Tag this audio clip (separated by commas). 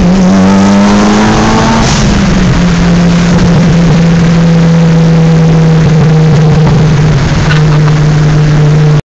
Vehicle, Car